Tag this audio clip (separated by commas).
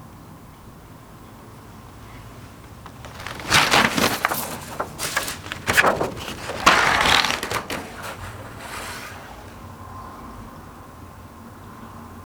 Tearing